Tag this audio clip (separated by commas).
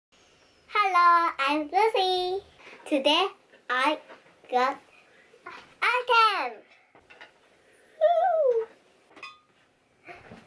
Speech, kid speaking